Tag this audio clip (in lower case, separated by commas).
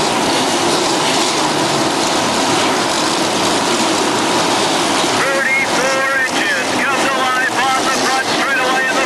speech